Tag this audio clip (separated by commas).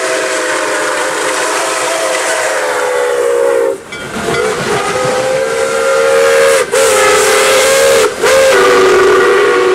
Steam, Hiss, Steam whistle